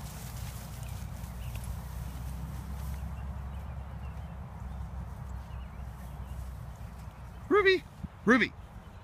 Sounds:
Speech

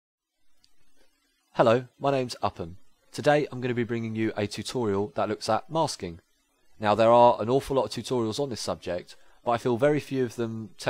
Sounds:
Speech, Narration

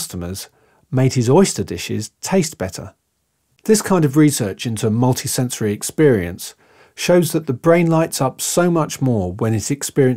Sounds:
Speech

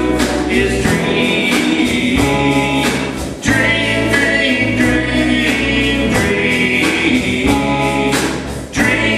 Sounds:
Country, Music

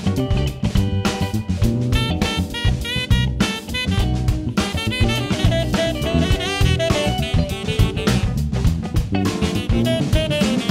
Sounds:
Music

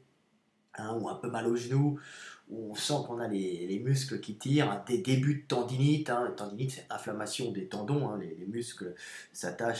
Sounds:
Speech

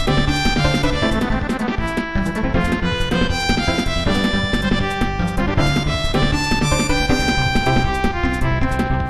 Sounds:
Exciting music, Music

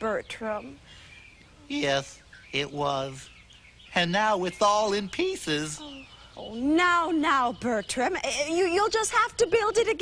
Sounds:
Speech

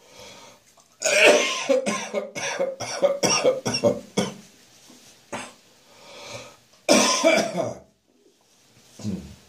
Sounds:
Cough

